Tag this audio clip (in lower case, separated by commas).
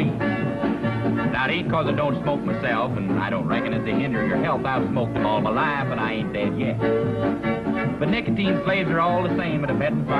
speech, music